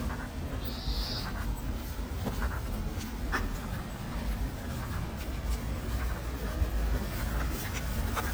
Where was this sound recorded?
on a street